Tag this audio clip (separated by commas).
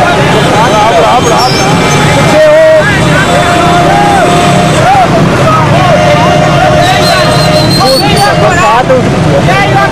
Speech